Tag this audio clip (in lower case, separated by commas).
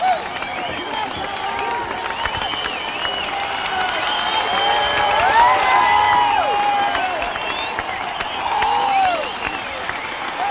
speech